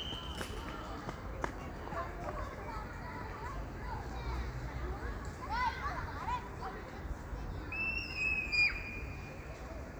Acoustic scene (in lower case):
park